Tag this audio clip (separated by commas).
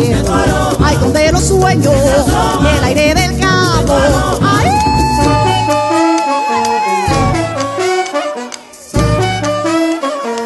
Music